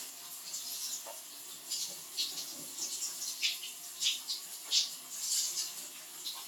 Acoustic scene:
restroom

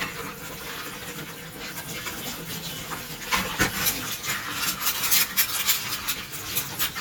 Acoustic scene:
kitchen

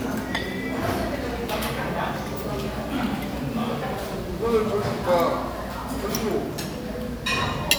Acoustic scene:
crowded indoor space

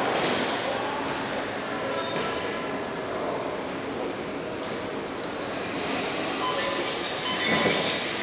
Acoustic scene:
subway station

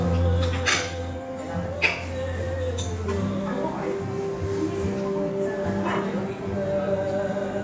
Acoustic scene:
restaurant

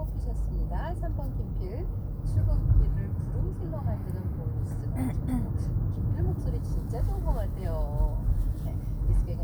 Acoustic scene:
car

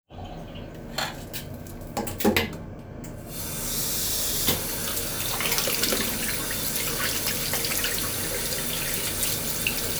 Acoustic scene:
restroom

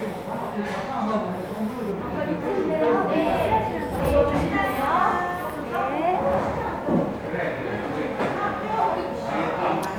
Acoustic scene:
restaurant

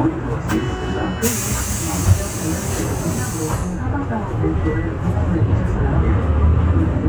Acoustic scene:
bus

